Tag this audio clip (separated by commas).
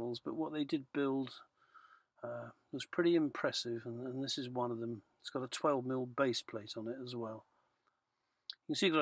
Speech